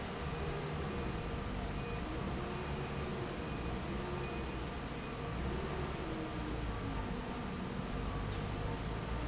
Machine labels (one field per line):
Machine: fan